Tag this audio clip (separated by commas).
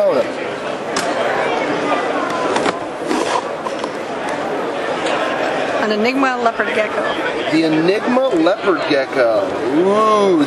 Speech